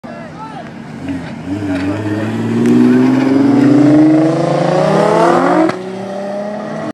A car speeding by